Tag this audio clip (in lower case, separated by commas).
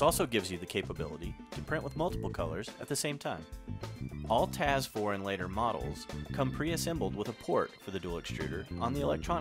music, speech